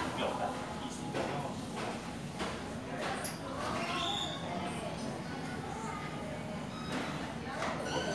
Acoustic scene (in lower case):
crowded indoor space